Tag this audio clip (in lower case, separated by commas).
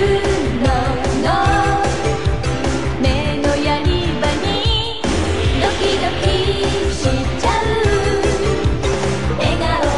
pop music, music